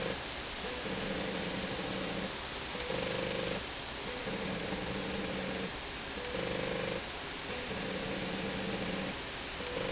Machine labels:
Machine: slide rail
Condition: abnormal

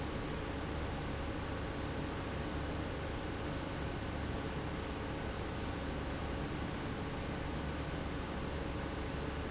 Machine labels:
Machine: pump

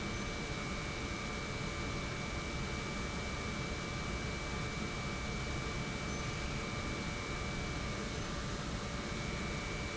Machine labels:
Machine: pump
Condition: normal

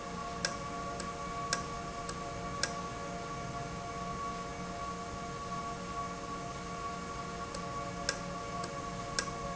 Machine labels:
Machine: valve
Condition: normal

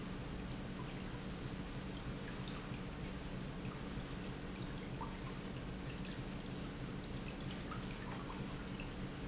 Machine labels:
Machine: pump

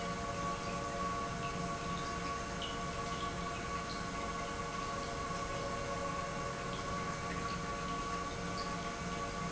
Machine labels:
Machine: pump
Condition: normal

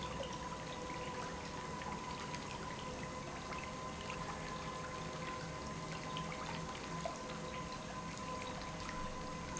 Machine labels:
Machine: pump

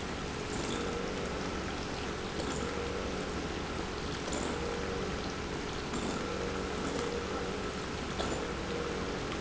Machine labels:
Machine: pump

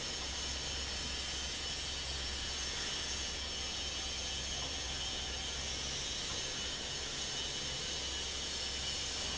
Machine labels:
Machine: fan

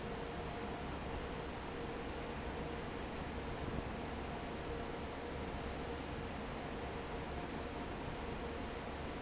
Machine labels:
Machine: fan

